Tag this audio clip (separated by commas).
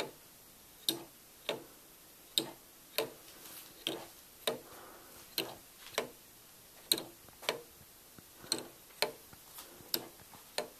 Tick-tock